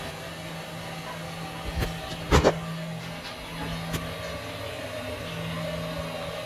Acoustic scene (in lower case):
restroom